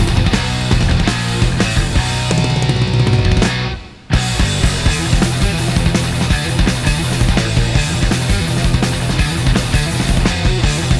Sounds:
Electric guitar, Plucked string instrument, Acoustic guitar, Guitar, Musical instrument, Strum, Music

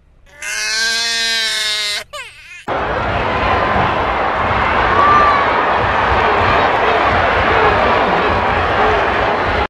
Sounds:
Screaming

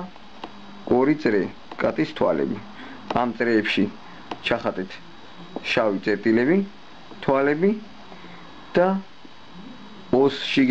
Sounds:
Speech

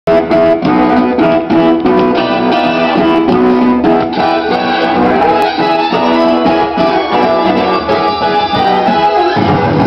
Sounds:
Electronic organ

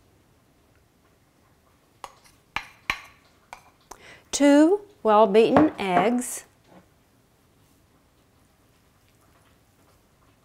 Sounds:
dishes, pots and pans

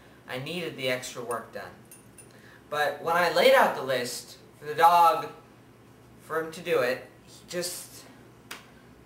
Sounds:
Speech

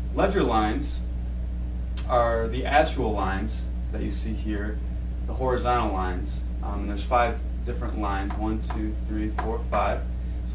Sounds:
Speech

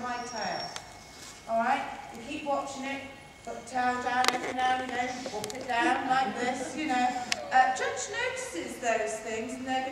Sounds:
Dog, Domestic animals, Animal, Speech

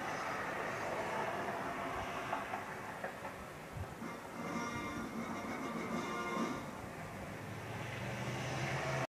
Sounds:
Television, Music

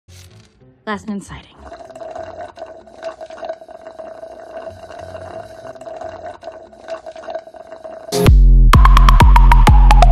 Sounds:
Speech, Music

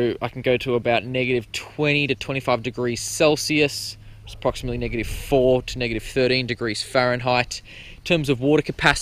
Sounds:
Speech

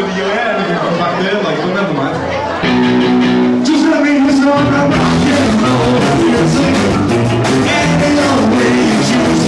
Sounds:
Music, Speech

